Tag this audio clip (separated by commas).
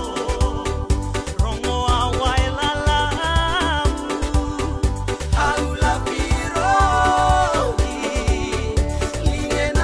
Music